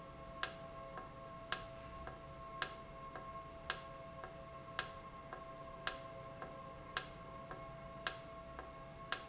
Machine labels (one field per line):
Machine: valve